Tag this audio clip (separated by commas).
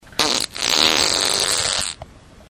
Fart